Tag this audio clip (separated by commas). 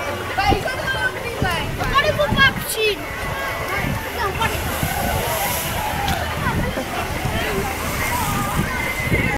Speech, Stream